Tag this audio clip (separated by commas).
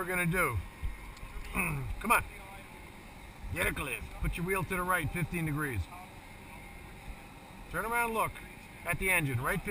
Speech